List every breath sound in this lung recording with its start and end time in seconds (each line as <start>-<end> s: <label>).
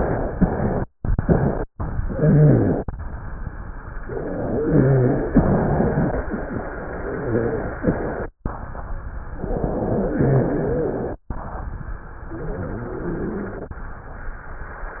1.99-2.90 s: inhalation
1.99-2.90 s: rhonchi
4.07-6.16 s: inhalation
4.55-5.27 s: wheeze
7.00-7.64 s: wheeze
9.34-11.21 s: inhalation
10.08-10.94 s: wheeze
12.27-13.74 s: inhalation
12.27-13.74 s: wheeze